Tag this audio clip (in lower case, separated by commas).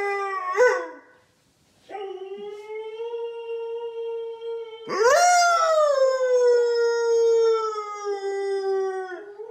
dog howling